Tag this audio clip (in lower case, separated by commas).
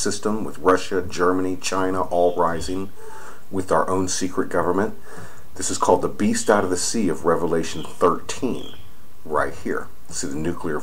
speech